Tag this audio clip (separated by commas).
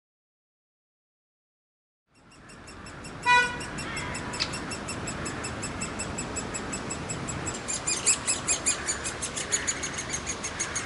woodpecker pecking tree